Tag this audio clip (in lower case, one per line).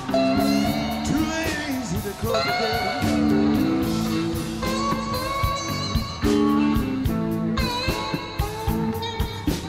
music